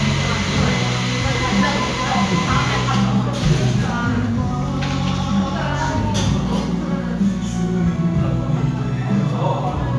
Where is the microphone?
in a cafe